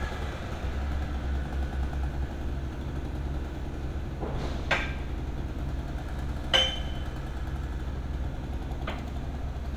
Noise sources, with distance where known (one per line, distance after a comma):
unidentified impact machinery
non-machinery impact, near